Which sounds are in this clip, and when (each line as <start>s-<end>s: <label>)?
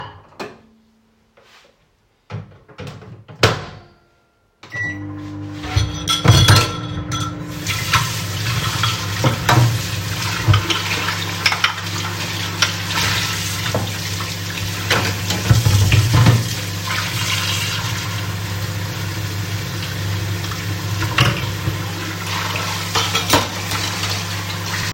0.0s-0.3s: cutlery and dishes
0.4s-0.7s: microwave
2.2s-24.9s: microwave
5.7s-8.2s: cutlery and dishes
7.6s-24.9s: running water
8.6s-9.1s: cutlery and dishes
10.7s-13.0s: cutlery and dishes
21.1s-21.5s: cutlery and dishes
22.9s-23.8s: cutlery and dishes